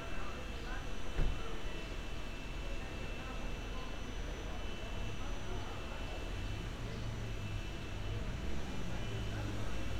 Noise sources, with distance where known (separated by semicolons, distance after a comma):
small-sounding engine